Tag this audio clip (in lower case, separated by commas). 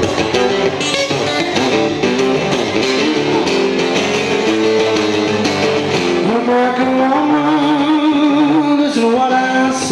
music, jazz, singing, musical instrument, guitar, speech